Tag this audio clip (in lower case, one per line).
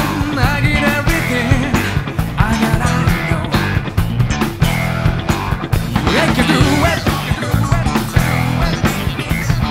music